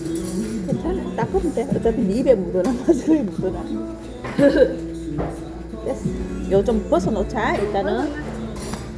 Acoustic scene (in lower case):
restaurant